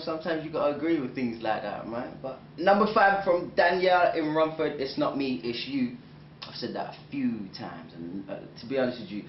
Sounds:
Speech

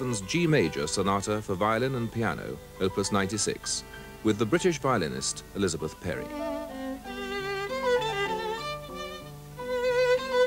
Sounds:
Musical instrument, Music, Speech, Violin

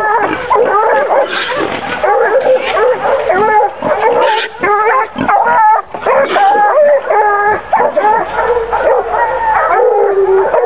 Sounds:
dog baying

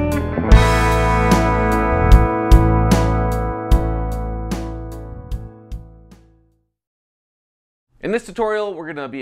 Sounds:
Music, Speech

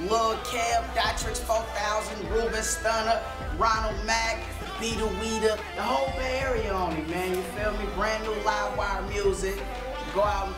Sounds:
Music, Speech

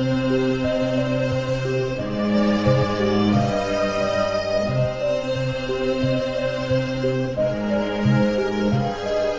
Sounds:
Music

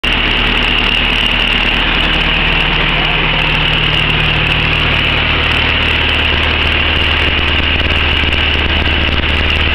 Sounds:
Car, outside, urban or man-made, Vehicle, Engine

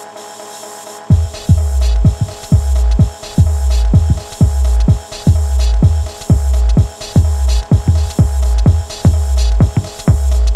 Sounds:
Music

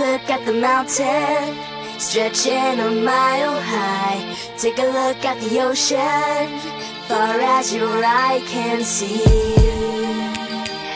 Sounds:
Music

